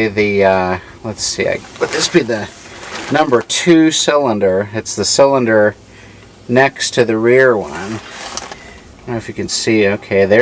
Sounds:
speech

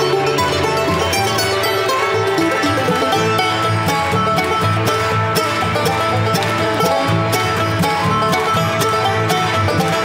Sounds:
music
mandolin
bluegrass

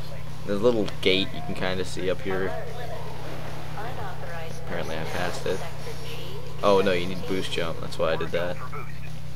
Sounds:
speech

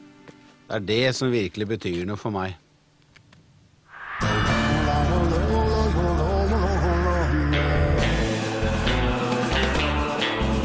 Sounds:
rhythm and blues
music
speech

